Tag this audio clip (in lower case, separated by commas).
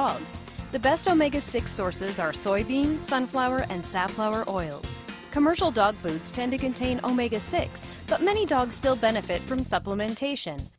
music, speech